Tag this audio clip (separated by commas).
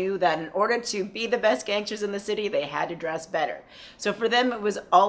Speech